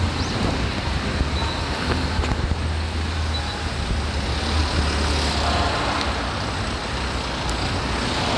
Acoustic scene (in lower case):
street